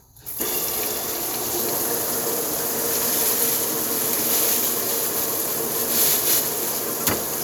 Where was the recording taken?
in a kitchen